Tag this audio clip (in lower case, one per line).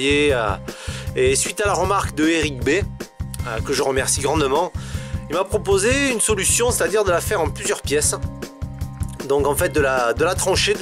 music
speech